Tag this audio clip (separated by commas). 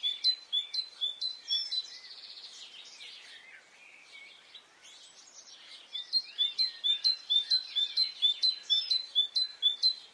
mynah bird singing